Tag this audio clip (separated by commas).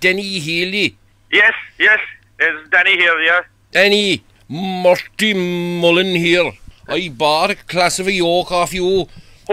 Speech